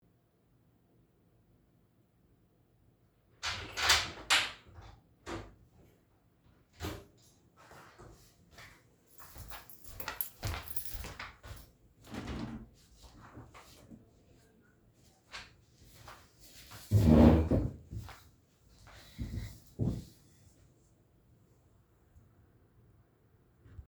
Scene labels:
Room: bedroom; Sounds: door (more than once), footsteps, keys

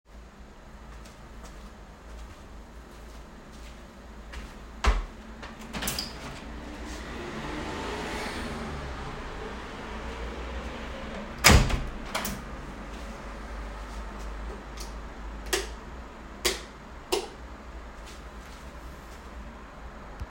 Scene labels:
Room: office; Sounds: footsteps, door (more than once), light switch

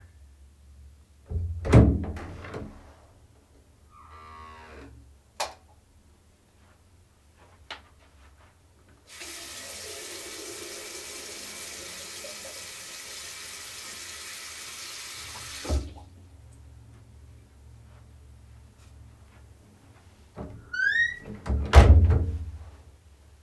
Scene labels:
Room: bathroom; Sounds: door (more than once), light switch, footsteps, running water

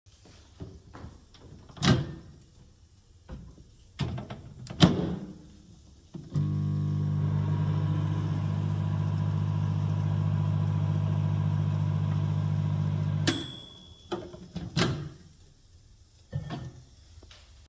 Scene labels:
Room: kitchen; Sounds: footsteps, microwave, cutlery and dishes

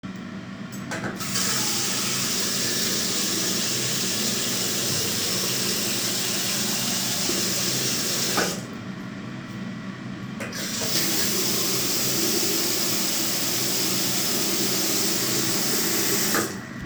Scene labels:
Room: bathroom; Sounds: running water

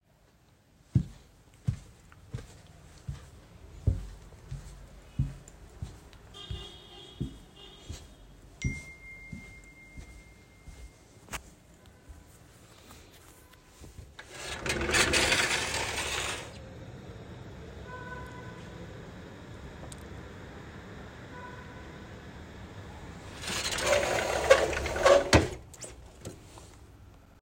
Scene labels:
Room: hallway, living room; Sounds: footsteps, phone ringing, window (more than once)

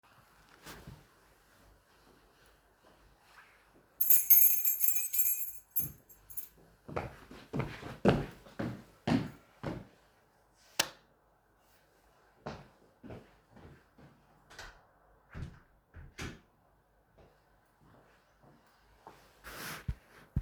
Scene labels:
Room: hallway; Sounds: keys, footsteps, light switch, door

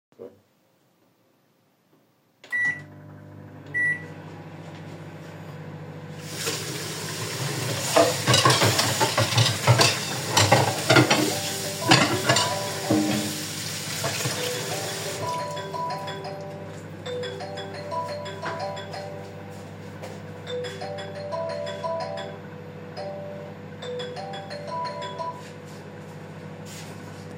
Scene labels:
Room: kitchen; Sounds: microwave, running water, cutlery and dishes, phone ringing

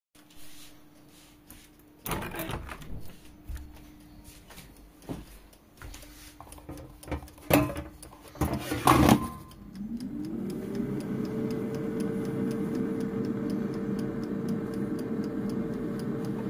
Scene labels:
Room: kitchen; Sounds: window, cutlery and dishes, microwave

